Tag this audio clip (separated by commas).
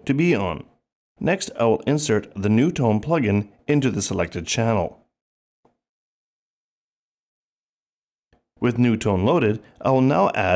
Speech